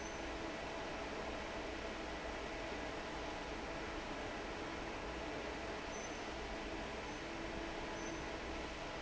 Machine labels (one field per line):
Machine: fan